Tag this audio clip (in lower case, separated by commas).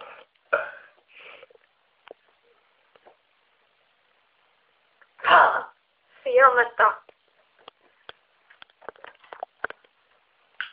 speech, inside a small room